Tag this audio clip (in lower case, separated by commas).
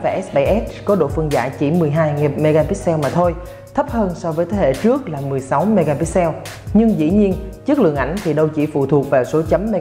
music, speech